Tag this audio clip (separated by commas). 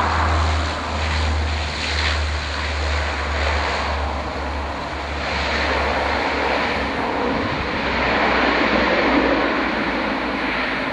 Vehicle, Aircraft, Propeller, airplane